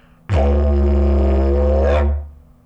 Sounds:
musical instrument, music

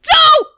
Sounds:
human voice, yell, shout

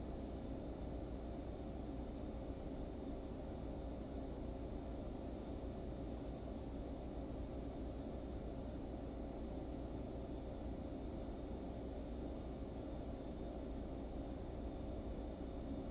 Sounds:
engine

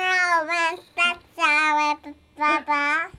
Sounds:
human voice, speech

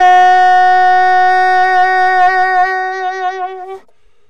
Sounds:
music, musical instrument, woodwind instrument

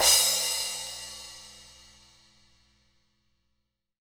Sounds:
musical instrument, music, cymbal, crash cymbal, percussion

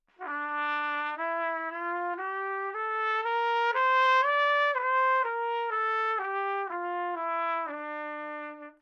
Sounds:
musical instrument, trumpet, music, brass instrument

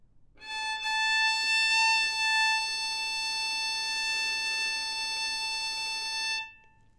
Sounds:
musical instrument, music, bowed string instrument

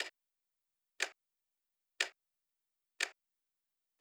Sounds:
mechanisms, tick-tock, clock

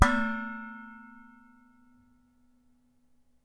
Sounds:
dishes, pots and pans, domestic sounds

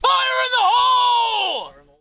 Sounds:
speech, male speech, human voice

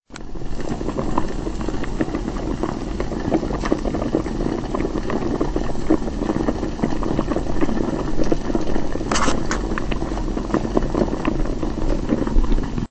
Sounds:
liquid, boiling

